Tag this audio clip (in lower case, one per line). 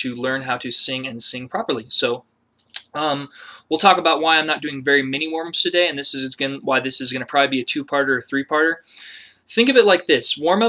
speech